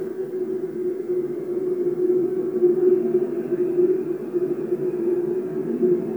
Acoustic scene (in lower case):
subway train